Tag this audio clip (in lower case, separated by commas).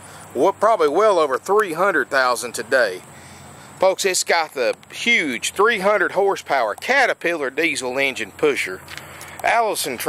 speech